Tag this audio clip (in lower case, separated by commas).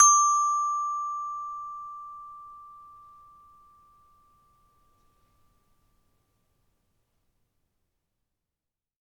musical instrument, mallet percussion, percussion, music, marimba